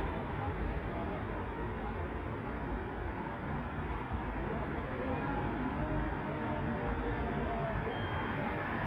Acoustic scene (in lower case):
street